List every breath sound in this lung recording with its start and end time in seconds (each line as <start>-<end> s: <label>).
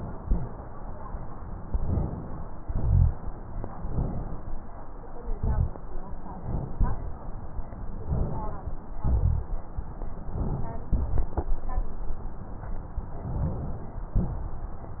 1.67-2.58 s: inhalation
2.58-3.19 s: exhalation
2.58-3.19 s: rhonchi
3.87-4.67 s: inhalation
5.29-5.86 s: exhalation
5.29-5.86 s: rhonchi
6.36-7.17 s: inhalation
7.97-8.79 s: inhalation
8.99-9.56 s: exhalation
8.99-9.56 s: rhonchi
10.29-10.91 s: inhalation
10.93-11.50 s: exhalation
13.24-14.13 s: inhalation
14.16-15.00 s: exhalation